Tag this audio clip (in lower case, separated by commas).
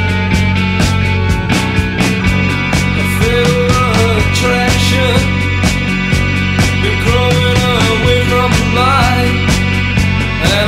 music